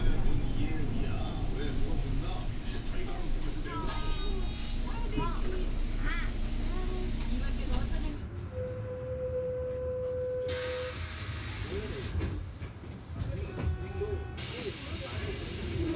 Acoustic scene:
bus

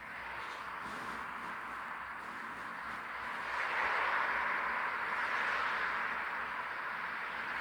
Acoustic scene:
street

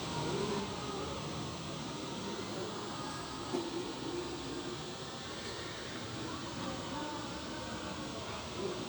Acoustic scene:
park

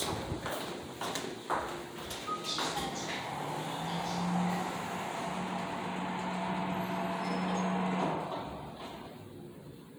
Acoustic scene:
elevator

